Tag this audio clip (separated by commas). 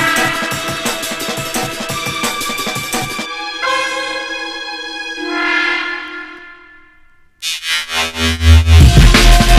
Drum and bass, Electronic music, Music